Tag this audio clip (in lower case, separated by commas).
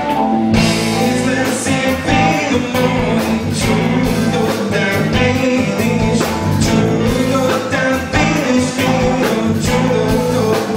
singing, music, rock and roll, guitar